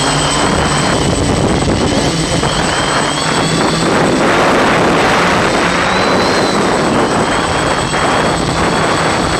A voice of idling aircraft engine and wind blowing off